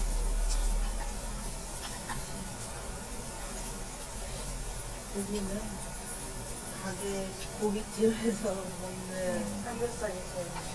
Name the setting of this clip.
restaurant